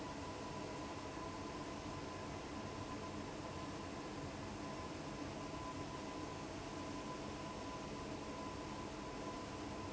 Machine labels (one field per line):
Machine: fan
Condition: abnormal